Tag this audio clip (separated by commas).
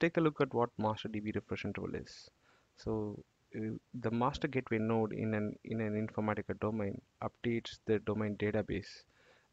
Speech